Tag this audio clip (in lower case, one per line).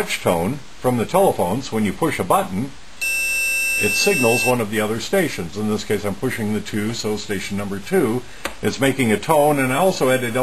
speech